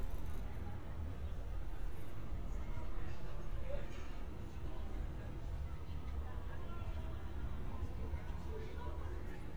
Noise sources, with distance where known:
person or small group talking, far

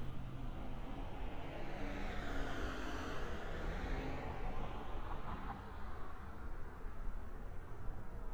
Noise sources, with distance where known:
engine of unclear size, far

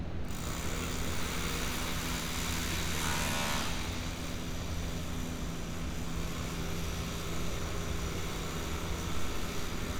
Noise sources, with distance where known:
unidentified impact machinery, far

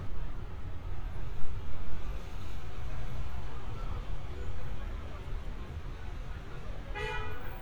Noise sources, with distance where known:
car horn, near

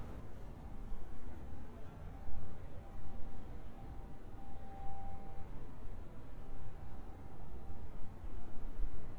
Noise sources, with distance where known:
background noise

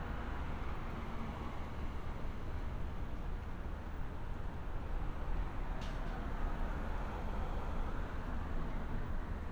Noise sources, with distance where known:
engine of unclear size, far

